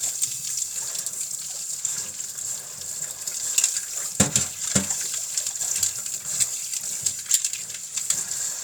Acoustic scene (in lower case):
kitchen